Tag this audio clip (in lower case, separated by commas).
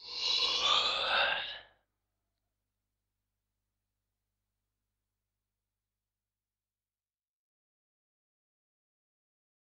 sound effect